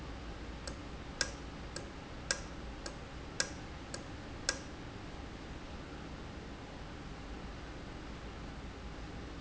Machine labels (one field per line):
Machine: valve